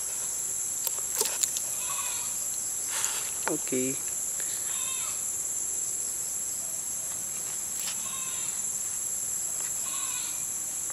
A insect flying by a goat outside